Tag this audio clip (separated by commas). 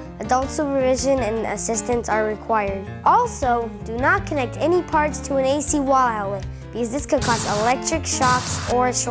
Music, Speech